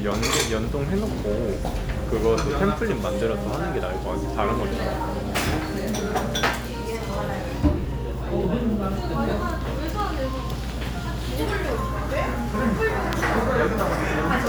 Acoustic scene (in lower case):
restaurant